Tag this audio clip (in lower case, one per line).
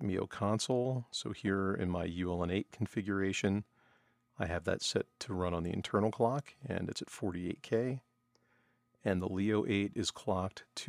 speech